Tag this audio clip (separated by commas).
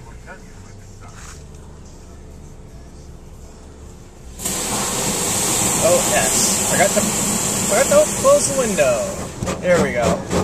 Speech